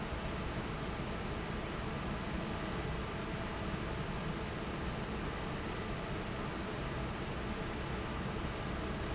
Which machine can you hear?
fan